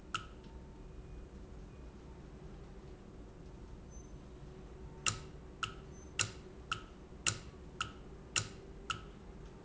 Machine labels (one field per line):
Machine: valve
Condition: normal